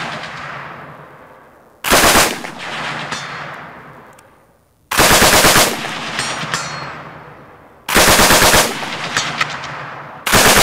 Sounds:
machine gun shooting

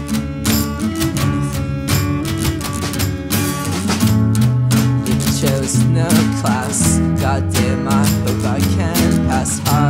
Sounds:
Music

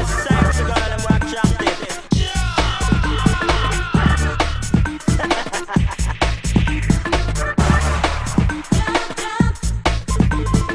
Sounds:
Electronic music, Music

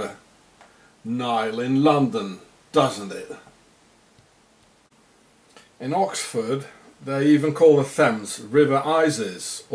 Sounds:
Speech

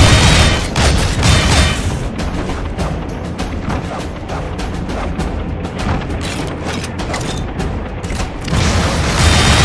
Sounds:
Music, Vehicle

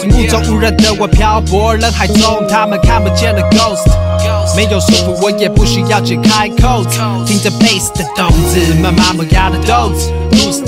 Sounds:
Music

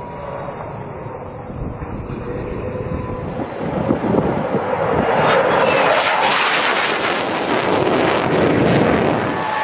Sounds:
airplane flyby

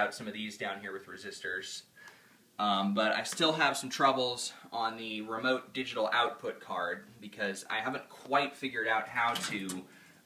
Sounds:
Speech

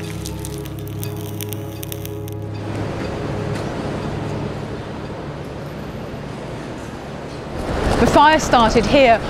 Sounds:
Music, Fire, Speech

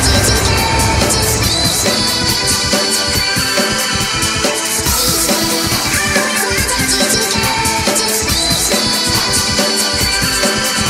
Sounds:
Music, Dubstep

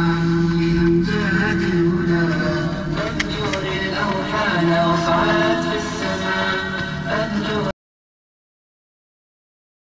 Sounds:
Music

